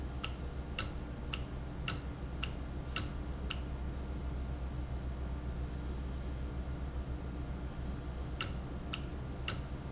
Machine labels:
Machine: valve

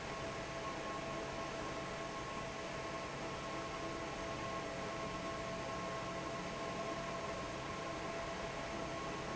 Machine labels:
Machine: fan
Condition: normal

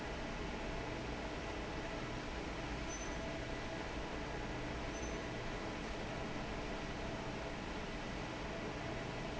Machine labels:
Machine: fan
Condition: normal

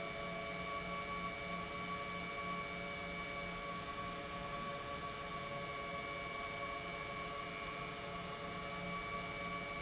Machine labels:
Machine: pump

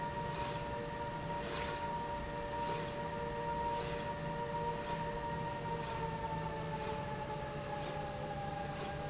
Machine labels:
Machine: slide rail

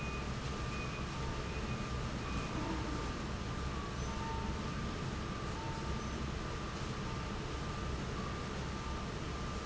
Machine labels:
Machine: fan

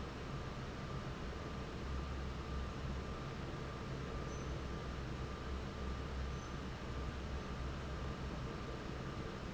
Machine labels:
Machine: fan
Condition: normal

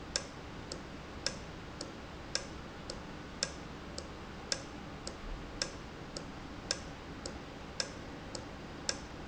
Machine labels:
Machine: valve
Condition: normal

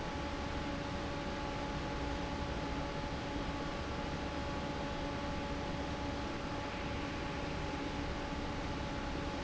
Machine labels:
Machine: fan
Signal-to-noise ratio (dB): -6 dB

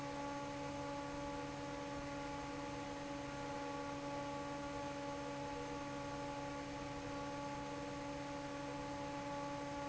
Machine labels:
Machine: fan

